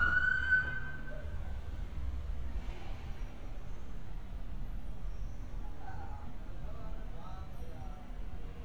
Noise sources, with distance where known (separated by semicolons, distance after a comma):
siren, near